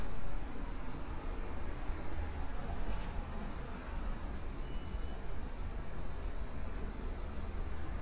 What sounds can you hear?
large-sounding engine